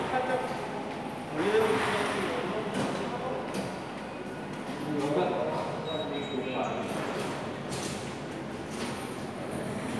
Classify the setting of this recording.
subway station